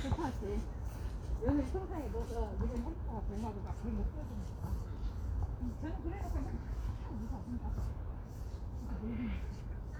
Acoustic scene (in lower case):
park